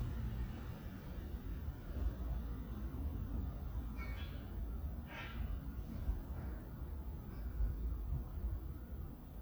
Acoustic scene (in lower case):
residential area